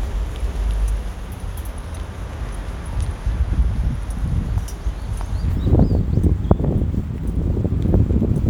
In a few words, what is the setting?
residential area